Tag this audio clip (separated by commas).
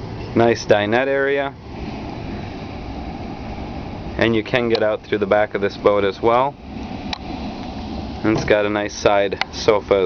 Boat, Vehicle, Speech